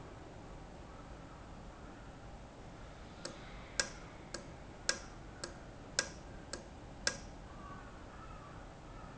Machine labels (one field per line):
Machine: valve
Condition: normal